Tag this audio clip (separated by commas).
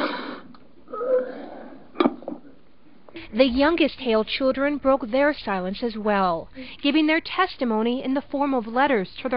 inside a large room or hall, Speech